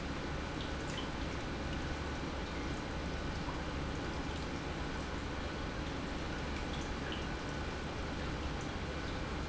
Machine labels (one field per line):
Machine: pump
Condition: normal